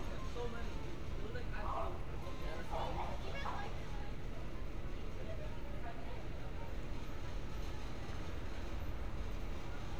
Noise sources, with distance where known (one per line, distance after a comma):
person or small group talking, far